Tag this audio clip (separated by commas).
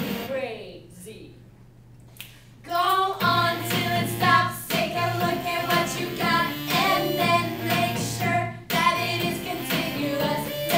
Music, Speech